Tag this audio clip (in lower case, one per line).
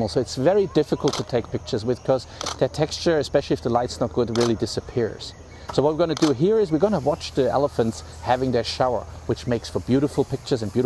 speech